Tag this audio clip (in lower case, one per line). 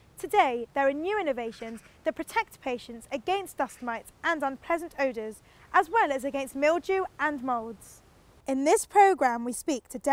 speech